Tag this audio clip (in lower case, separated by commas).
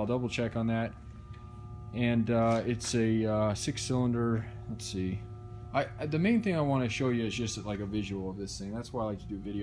speech